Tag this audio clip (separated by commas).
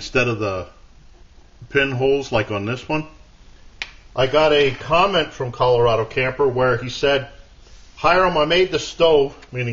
Speech